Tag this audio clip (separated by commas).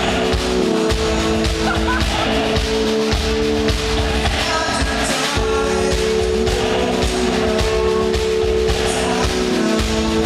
Music